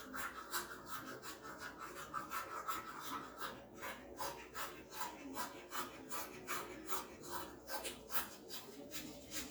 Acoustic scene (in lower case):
restroom